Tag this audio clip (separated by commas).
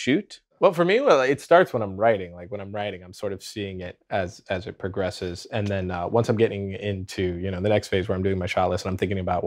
Speech